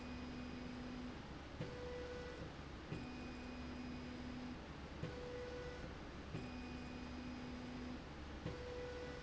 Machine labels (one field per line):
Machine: slide rail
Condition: normal